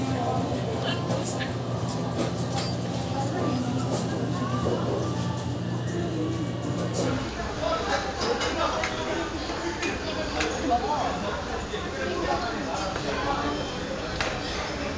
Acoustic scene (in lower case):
restaurant